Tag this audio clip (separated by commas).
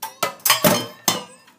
dishes, pots and pans, Domestic sounds, thud